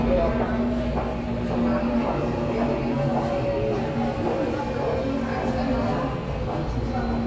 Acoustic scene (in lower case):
subway station